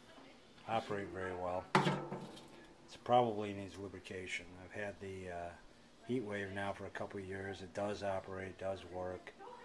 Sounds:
Speech

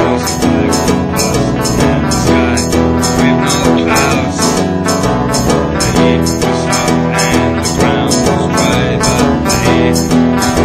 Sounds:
Folk music, Music

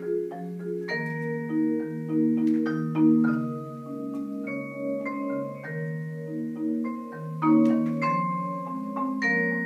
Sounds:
playing marimba, Marimba, Music

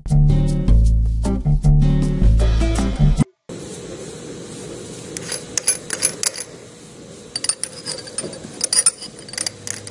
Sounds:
Music

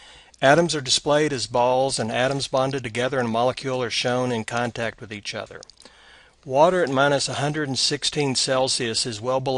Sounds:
Speech

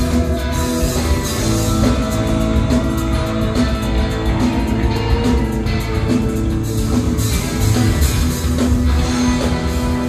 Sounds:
Music

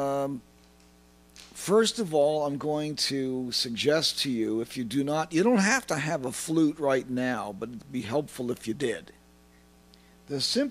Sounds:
Speech

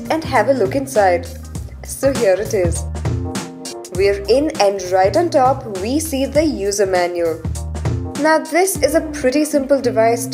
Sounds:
Speech, Music

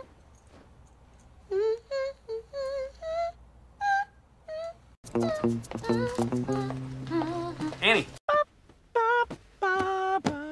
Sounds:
people humming

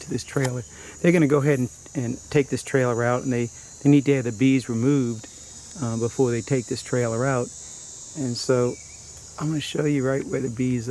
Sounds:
Speech

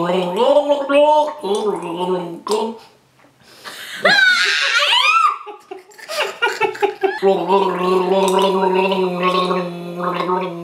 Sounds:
people gargling

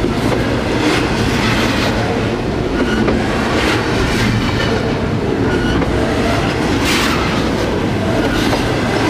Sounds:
Train, Rail transport, train wagon, Clickety-clack

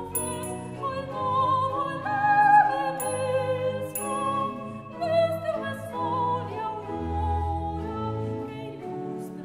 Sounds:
Dance music, Music

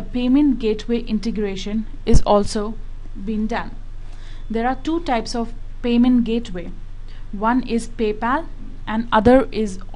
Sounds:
Speech

